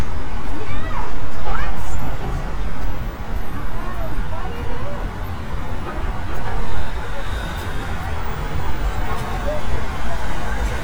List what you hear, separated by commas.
large-sounding engine, person or small group talking